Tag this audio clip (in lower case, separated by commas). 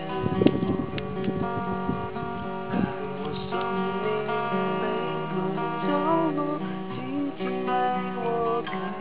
music, male singing